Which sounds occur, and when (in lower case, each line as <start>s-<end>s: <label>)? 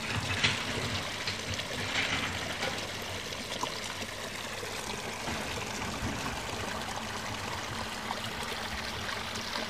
0.0s-9.6s: pump (liquid)
0.0s-9.6s: wind
0.4s-0.5s: tap
0.9s-1.0s: tick
1.2s-1.3s: tick
1.5s-1.6s: tick
1.8s-2.3s: generic impact sounds
2.6s-2.8s: tap